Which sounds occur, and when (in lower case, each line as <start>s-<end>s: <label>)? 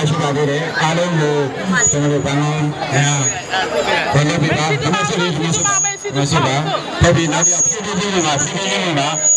0.0s-1.4s: male speech
0.0s-9.3s: speech babble
1.6s-2.7s: male speech
1.7s-2.0s: brief tone
2.8s-3.4s: male speech
2.9s-3.6s: brief tone
4.2s-5.7s: male speech
5.5s-6.1s: brief tone
6.0s-6.7s: male speech
7.0s-9.2s: male speech
7.4s-7.9s: brief tone